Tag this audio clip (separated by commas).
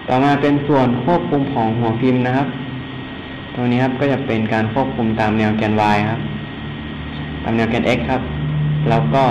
Speech